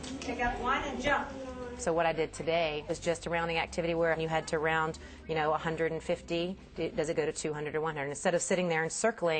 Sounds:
speech

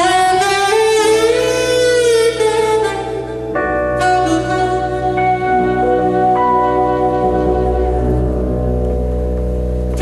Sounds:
music
theme music

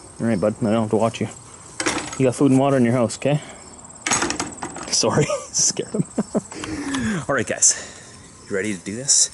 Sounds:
speech

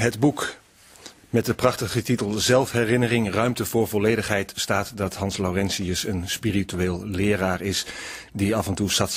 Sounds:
speech

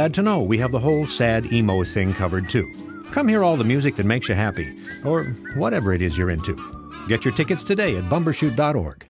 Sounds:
speech
music

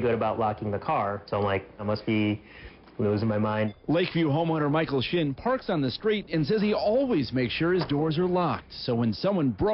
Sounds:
speech

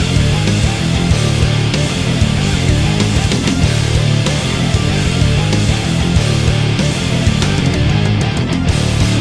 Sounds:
music

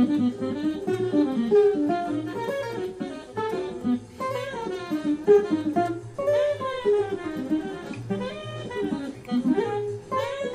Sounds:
music
plucked string instrument
strum
musical instrument
guitar
acoustic guitar

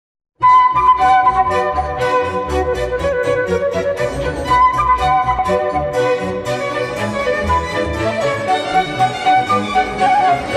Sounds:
flute
music

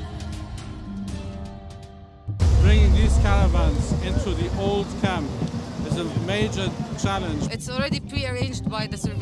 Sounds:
speech
music

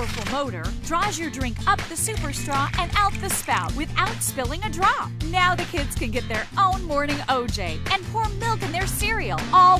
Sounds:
music
speech

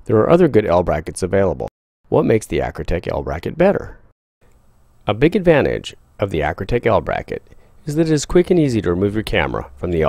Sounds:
speech
inside a small room

